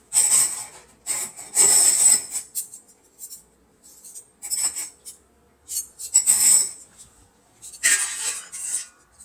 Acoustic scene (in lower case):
kitchen